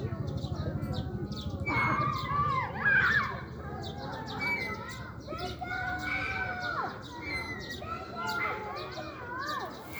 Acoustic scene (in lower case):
residential area